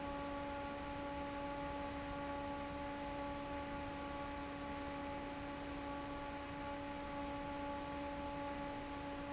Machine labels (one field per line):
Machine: fan